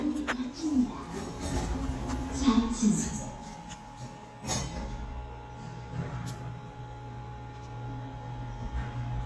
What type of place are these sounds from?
elevator